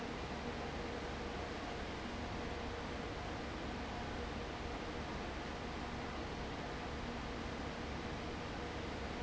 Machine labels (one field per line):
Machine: fan